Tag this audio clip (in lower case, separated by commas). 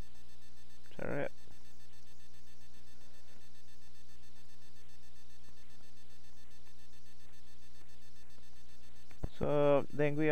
speech